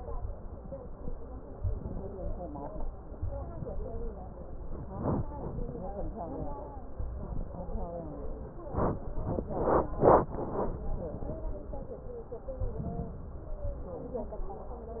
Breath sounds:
Inhalation: 1.55-2.41 s, 12.67-13.53 s

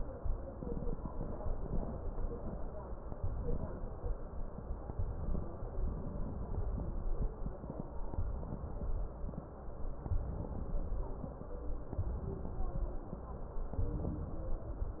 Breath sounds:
Inhalation: 3.11-4.11 s, 5.75-6.75 s, 8.11-9.12 s, 10.04-11.04 s, 11.87-12.87 s, 13.73-14.74 s
Crackles: 3.12-4.12 s, 10.04-11.04 s, 11.86-12.86 s, 13.72-14.73 s

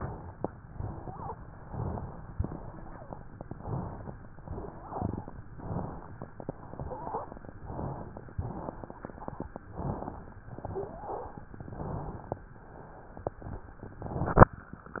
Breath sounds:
Inhalation: 0.65-1.35 s, 2.39-3.23 s, 4.48-5.39 s, 6.38-7.50 s, 8.41-9.60 s, 10.49-11.54 s, 12.66-13.95 s
Exhalation: 1.63-2.34 s, 3.57-4.16 s, 5.56-6.26 s, 7.65-8.37 s, 9.73-10.44 s, 11.63-12.47 s

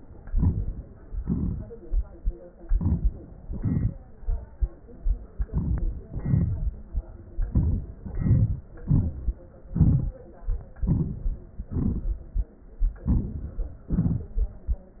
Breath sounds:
Inhalation: 0.24-1.04 s, 2.59-3.47 s, 5.44-6.13 s, 7.50-8.03 s, 8.81-9.69 s, 10.76-11.65 s, 12.98-13.86 s
Exhalation: 1.02-2.61 s, 3.45-4.74 s, 6.11-7.11 s, 8.05-8.82 s, 9.68-10.75 s, 11.65-12.96 s, 13.88-14.98 s
Crackles: 1.02-1.70 s, 2.71-3.12 s

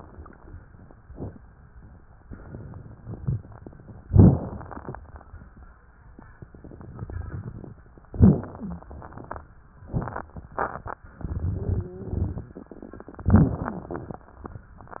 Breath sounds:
Inhalation: 1.00-2.16 s, 4.06-5.96 s, 8.05-9.82 s, 13.22-15.00 s
Exhalation: 2.19-4.06 s, 5.97-8.09 s, 9.84-13.19 s
Wheeze: 8.54-8.91 s, 13.22-14.11 s
Stridor: 11.49-12.49 s
Crackles: 1.00-2.16 s, 2.19-4.03 s, 4.06-5.96 s, 5.97-8.09 s

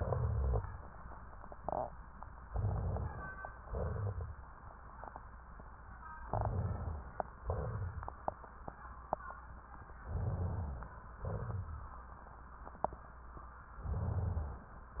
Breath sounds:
Inhalation: 2.46-3.59 s, 6.26-7.34 s, 10.09-11.12 s
Exhalation: 3.59-4.49 s, 7.41-8.25 s, 11.23-12.07 s

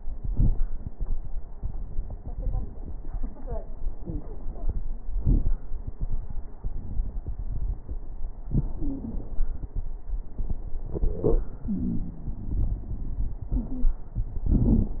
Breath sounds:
Wheeze: 8.79-9.21 s, 11.68-12.40 s, 13.56-13.97 s

